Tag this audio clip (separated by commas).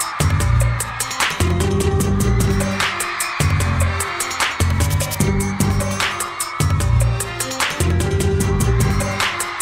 Music